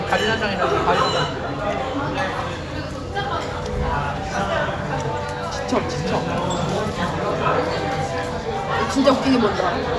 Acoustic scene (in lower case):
crowded indoor space